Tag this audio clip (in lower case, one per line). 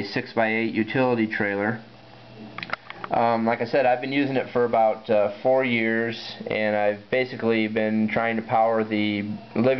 speech